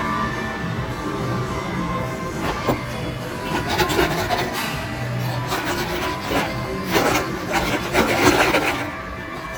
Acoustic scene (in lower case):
cafe